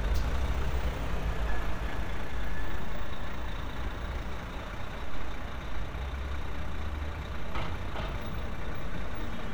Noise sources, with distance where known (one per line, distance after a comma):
large-sounding engine, near